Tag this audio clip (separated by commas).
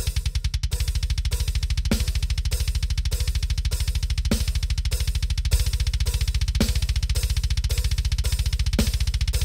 playing double bass